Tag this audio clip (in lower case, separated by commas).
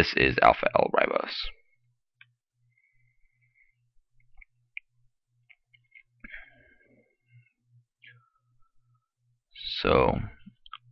speech